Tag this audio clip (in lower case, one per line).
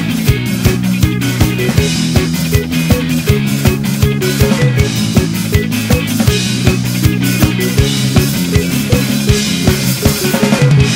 music